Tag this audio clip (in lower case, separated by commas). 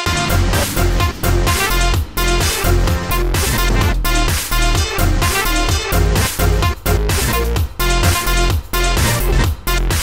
music, dubstep